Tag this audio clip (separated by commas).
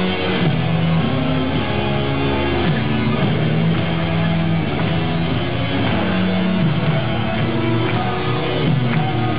Music